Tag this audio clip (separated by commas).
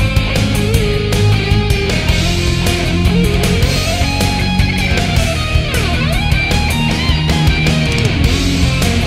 Music, Guitar, Plucked string instrument, Musical instrument